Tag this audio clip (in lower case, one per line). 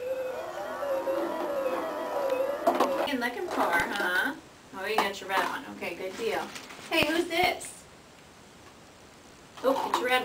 woman speaking
speech